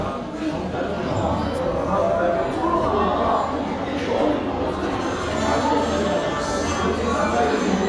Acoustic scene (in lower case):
crowded indoor space